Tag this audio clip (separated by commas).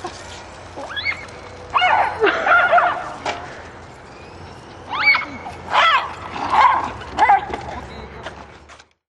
Dog, Animal, Speech, pets